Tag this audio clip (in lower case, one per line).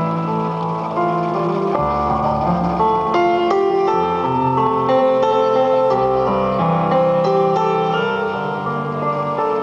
speech
music